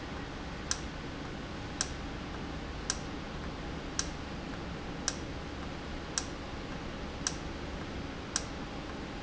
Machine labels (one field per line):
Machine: valve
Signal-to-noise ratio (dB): -6 dB